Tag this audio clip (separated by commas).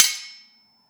Cutlery, Domestic sounds